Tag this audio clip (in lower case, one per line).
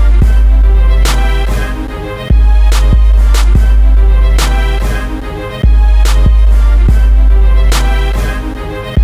music